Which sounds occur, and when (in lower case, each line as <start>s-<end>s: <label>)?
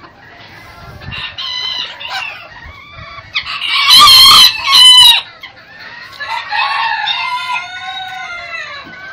0.0s-9.1s: chicken
0.0s-9.1s: wind
0.6s-1.3s: wind noise (microphone)
1.0s-9.1s: cock-a-doodle-doo
2.4s-3.3s: wind noise (microphone)
6.0s-6.2s: generic impact sounds
8.8s-9.0s: generic impact sounds